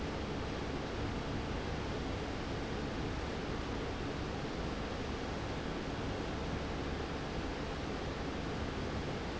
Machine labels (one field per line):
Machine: fan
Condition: abnormal